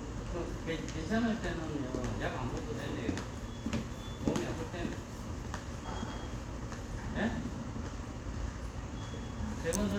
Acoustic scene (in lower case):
subway station